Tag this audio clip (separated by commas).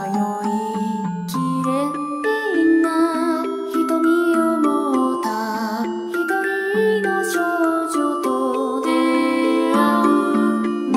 Music, Soul music